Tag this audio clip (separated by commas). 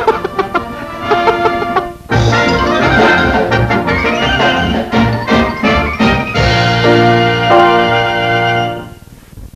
Music